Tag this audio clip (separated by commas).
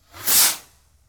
Fireworks, Explosion